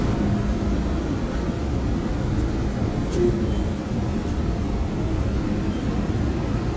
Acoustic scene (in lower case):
subway train